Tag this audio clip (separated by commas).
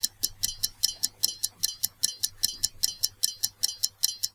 Clock, Mechanisms